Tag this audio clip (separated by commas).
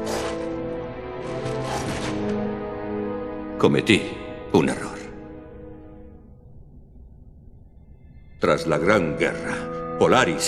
Speech, Music